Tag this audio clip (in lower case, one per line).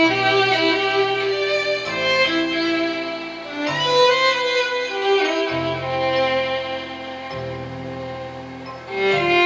music
fiddle
musical instrument